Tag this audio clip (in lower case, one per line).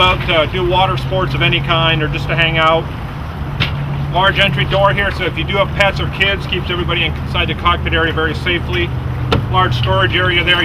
speech
motorboat
boat
vehicle